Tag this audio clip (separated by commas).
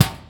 home sounds, Door